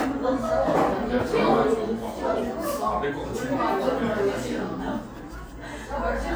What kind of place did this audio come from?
cafe